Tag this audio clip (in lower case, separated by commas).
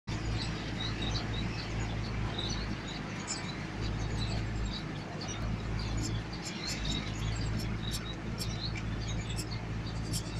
canary calling